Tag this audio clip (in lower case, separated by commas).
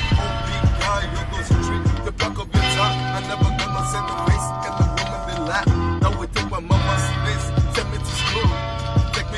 male singing, music